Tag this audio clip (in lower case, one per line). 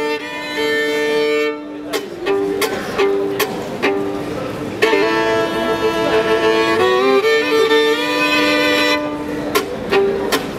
fiddle
music
musical instrument